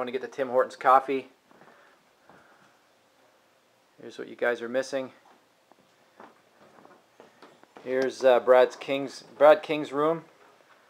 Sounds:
speech

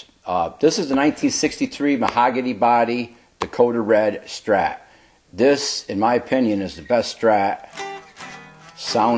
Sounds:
music, speech

